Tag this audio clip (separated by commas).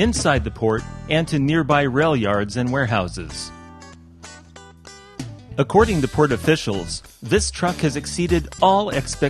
Music, Speech